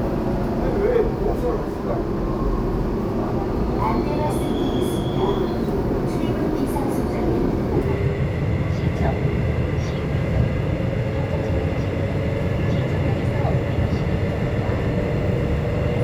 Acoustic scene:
subway train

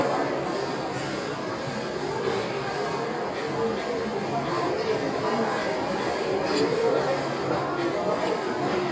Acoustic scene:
crowded indoor space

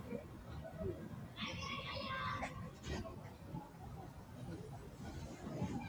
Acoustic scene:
residential area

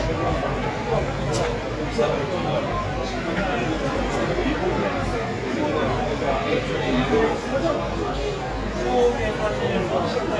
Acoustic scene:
crowded indoor space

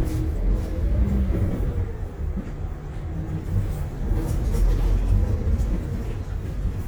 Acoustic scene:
bus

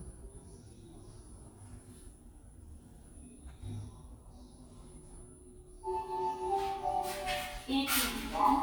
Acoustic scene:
elevator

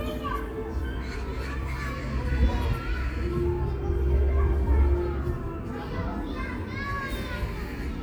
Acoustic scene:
park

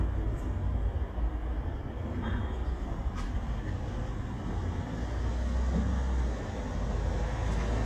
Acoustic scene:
residential area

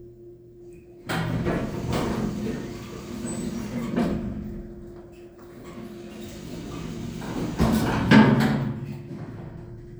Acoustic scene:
elevator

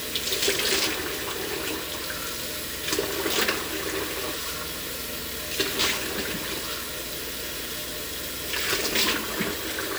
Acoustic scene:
kitchen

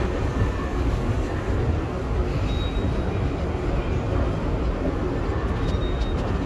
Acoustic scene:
subway station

